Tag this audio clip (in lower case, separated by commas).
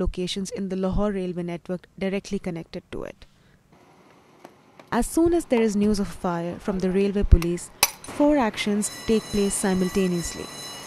speech